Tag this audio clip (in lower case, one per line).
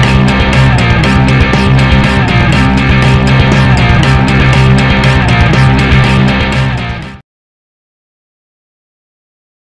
music